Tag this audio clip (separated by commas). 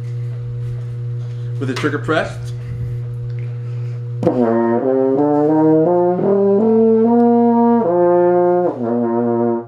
playing french horn